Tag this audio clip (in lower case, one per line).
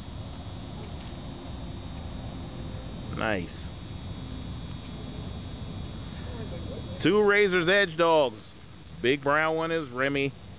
speech